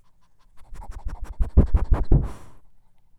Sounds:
Animal, Dog, pets

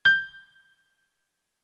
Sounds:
Musical instrument, Piano, Music, Keyboard (musical)

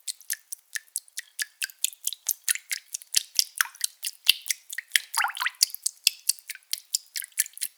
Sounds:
Liquid, Drip

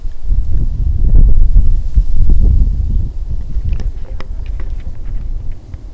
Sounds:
Wind

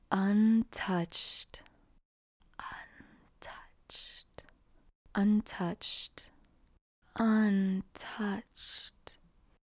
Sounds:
Human voice, woman speaking, Speech, Whispering

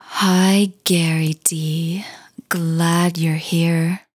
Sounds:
Human voice, Female speech, Speech

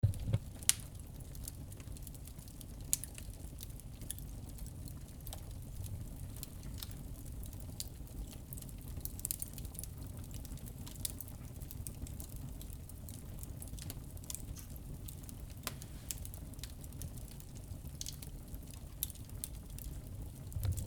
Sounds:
Fire

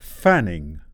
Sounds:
man speaking, Human voice, Speech

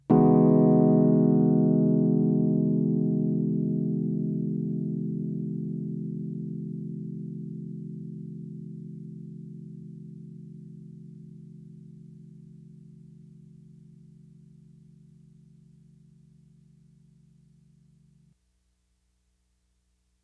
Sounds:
Music, Musical instrument, Keyboard (musical), Piano

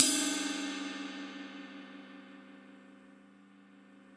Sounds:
Music, Cymbal, Percussion, Musical instrument, Crash cymbal

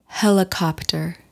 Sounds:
Human voice, Speech, Female speech

